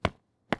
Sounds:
footsteps

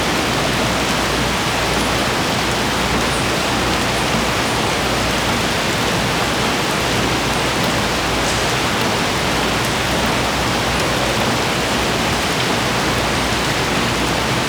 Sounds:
Rain, Water

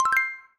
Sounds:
Music, Mallet percussion, Percussion, Musical instrument, Marimba

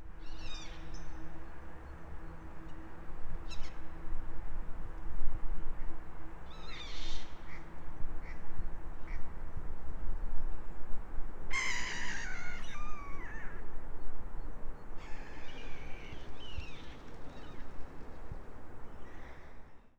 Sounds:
seagull, Animal, livestock, Fowl, Bird, Wild animals

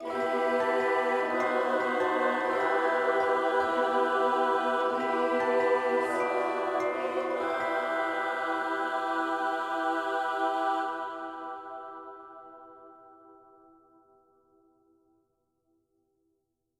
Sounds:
Musical instrument, Human voice, Singing, Music

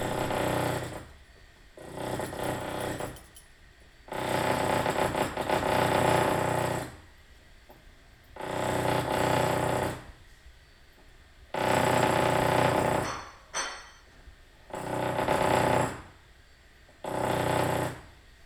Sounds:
Tools

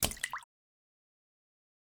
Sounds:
Drip, Liquid, Splash

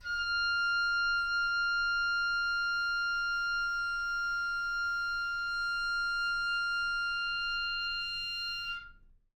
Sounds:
Musical instrument, Music, Wind instrument

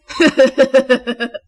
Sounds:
Human voice, Laughter

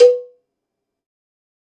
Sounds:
Bell, Cowbell

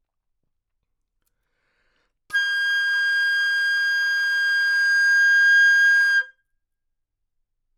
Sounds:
Musical instrument, Wind instrument, Music

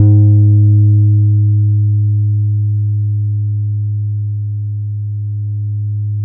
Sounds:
Bass guitar, Plucked string instrument, Music, Guitar, Musical instrument

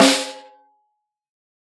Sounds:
Music, Drum, Snare drum, Musical instrument, Percussion

